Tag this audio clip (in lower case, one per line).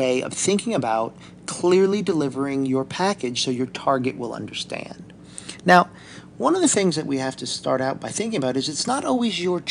speech